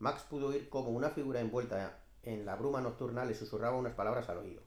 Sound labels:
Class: speech